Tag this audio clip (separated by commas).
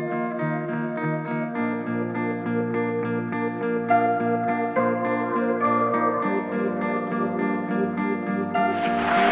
Speech, Music